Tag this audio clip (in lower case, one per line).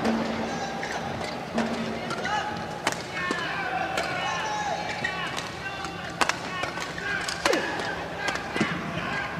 playing badminton